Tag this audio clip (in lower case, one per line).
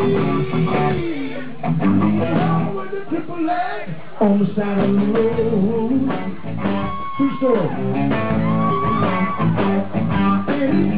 music
speech